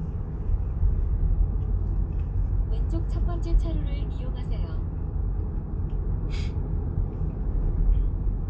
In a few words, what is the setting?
car